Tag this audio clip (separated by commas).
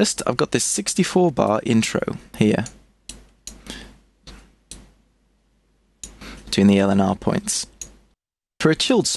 Speech